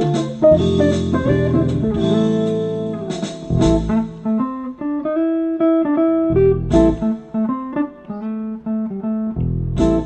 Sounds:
musical instrument, plucked string instrument, music, guitar, inside a small room

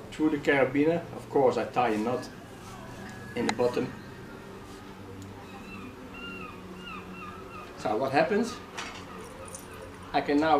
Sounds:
speech, outside, urban or man-made

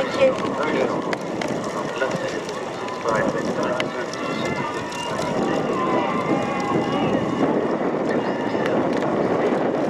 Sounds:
run, outside, rural or natural, speech, people running

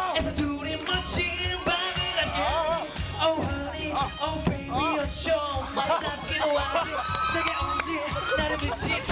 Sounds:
music, male singing

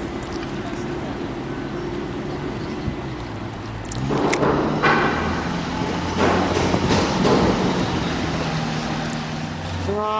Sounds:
speech, vehicle

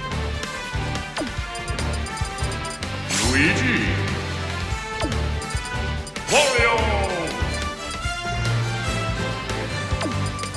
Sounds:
music, speech

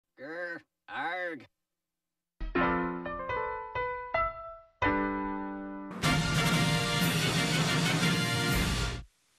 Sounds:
speech, music

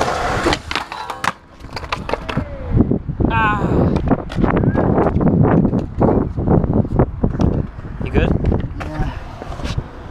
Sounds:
skateboarding, skateboard, speech

